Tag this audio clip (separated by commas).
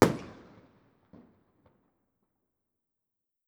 Explosion, Fireworks